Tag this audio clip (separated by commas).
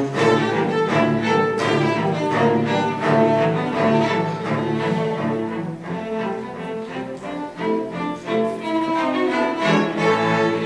Music, Cello, Musical instrument